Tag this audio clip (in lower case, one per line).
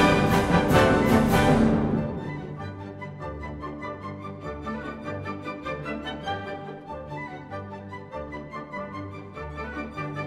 music